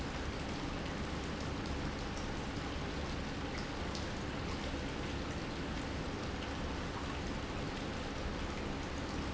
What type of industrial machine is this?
pump